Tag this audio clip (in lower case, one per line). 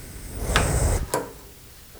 fire